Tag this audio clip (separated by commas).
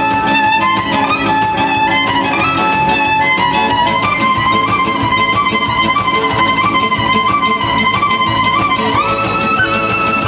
Exciting music, Music